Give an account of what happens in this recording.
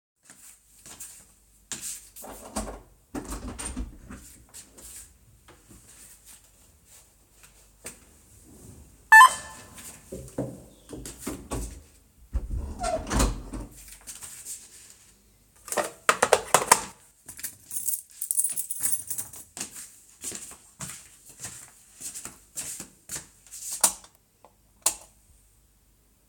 After a few footsteps, the door opens. Then the doorbell is heard, the door closes, and the door handle squeaks. They pick up the intercom handset, followed by the sound of keys jingling. After a few more footsteps, the light switch is turned on and off.